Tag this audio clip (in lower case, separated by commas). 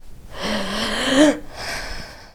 respiratory sounds, breathing